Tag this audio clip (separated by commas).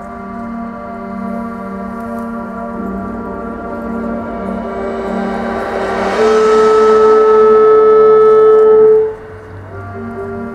outside, urban or man-made, Music, Theremin